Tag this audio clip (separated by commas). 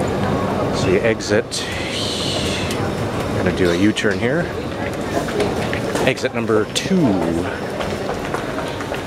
Speech, Walk